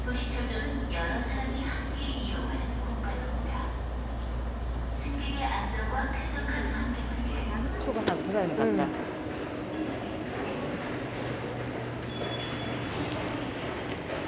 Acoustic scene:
subway station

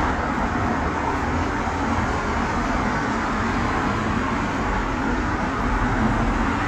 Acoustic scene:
street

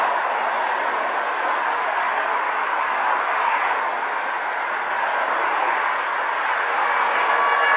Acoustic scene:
street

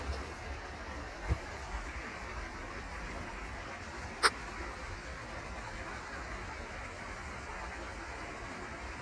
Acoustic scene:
park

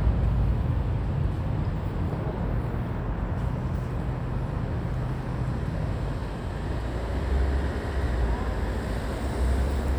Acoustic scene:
residential area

